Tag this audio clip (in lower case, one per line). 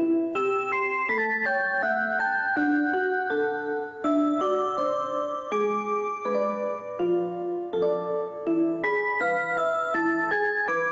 music